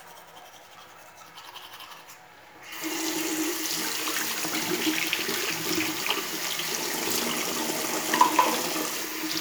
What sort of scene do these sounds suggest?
restroom